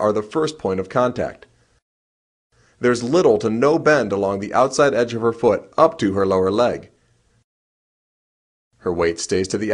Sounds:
inside a small room, Speech

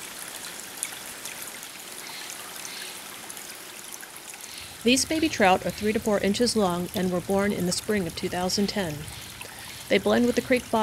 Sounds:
Stream, Speech

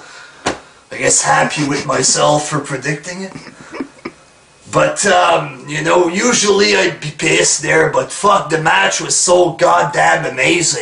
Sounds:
Speech

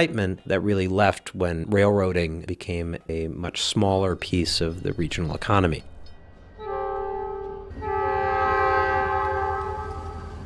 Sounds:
train wagon, Train, Rail transport, Train horn

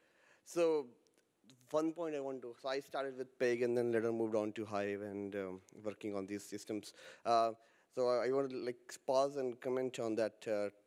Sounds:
Speech

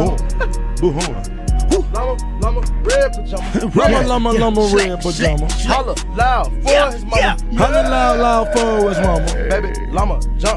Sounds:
rapping

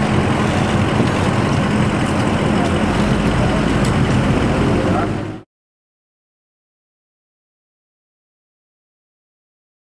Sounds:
Speech, Vehicle

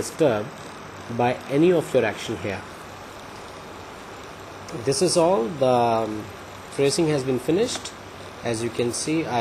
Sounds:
Speech

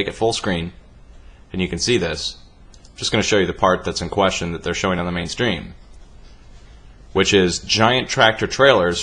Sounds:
Speech

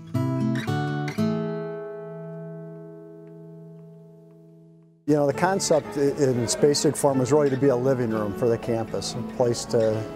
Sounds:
Speech, Music

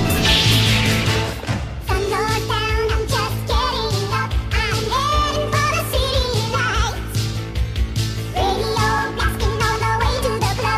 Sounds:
Rock and roll, Music

